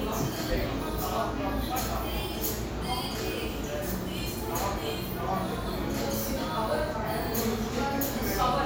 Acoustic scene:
cafe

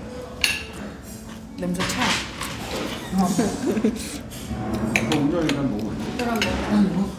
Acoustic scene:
restaurant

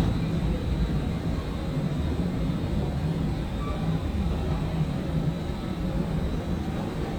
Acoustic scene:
subway station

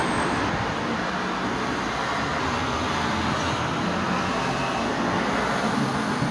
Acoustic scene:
street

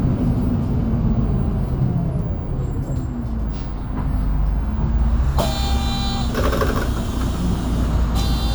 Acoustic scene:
bus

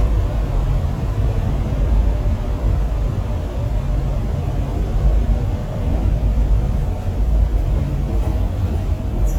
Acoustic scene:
bus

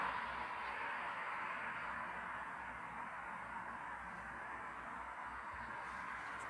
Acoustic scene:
street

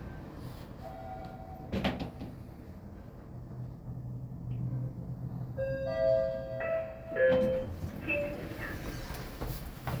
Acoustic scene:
elevator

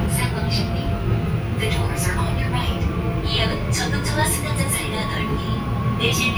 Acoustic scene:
subway train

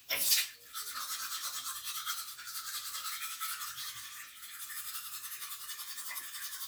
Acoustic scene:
restroom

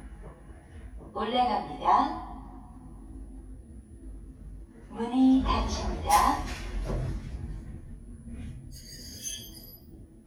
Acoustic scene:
elevator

